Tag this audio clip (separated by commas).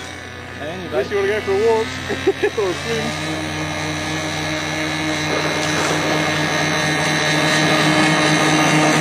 Speech, Boat, speedboat